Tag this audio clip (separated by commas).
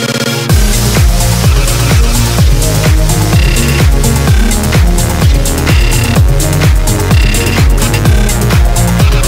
Music, Techno